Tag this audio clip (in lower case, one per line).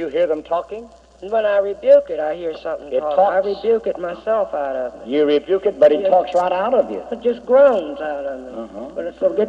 speech